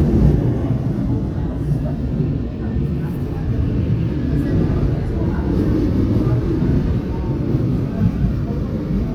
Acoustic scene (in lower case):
subway train